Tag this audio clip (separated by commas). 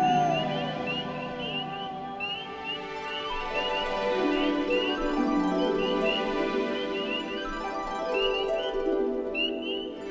Music, Tender music